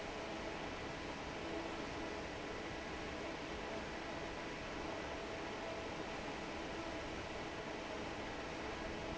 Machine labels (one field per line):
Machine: fan